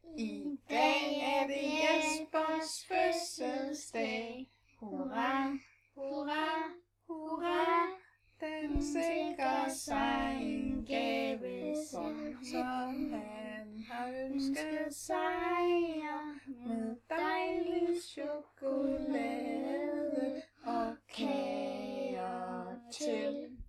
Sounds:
Human voice, Singing

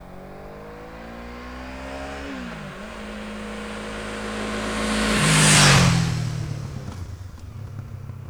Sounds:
Motorcycle, Vehicle, Motor vehicle (road)

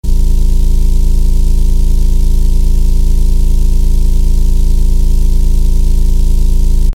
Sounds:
Motor vehicle (road), Vehicle, Engine

